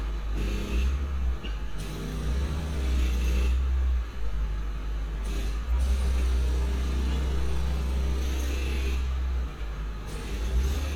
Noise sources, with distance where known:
unidentified impact machinery, far

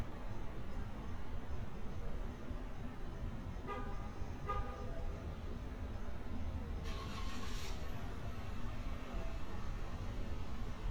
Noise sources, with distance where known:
medium-sounding engine, near
car horn, near

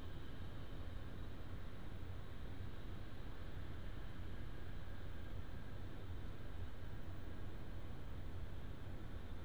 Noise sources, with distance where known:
background noise

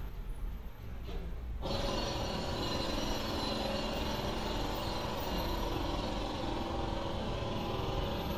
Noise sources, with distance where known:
jackhammer, near

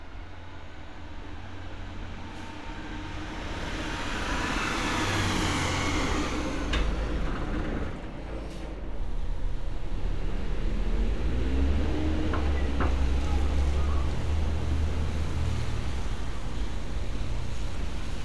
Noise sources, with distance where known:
large-sounding engine

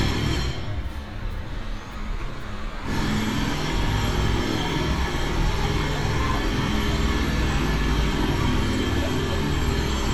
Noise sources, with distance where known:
jackhammer, near
unidentified human voice

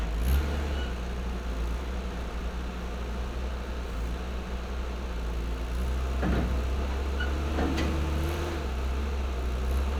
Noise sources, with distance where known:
engine of unclear size

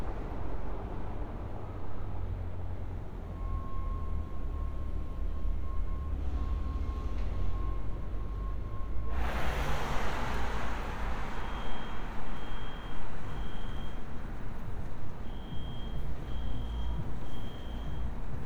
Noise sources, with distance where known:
unidentified alert signal, far

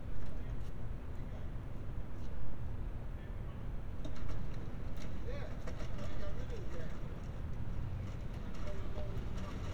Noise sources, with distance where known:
person or small group talking

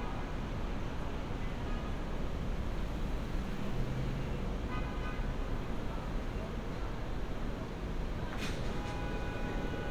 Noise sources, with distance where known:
car horn
person or small group talking

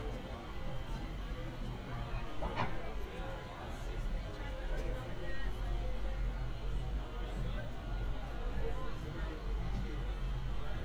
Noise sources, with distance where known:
person or small group talking, near

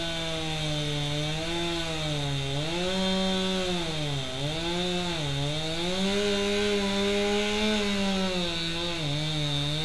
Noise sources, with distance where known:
chainsaw, near

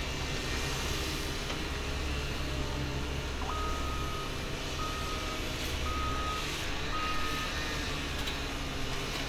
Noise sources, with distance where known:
unidentified powered saw
reverse beeper, near

